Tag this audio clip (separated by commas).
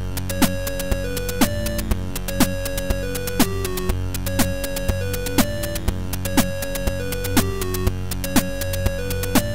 Soundtrack music, Music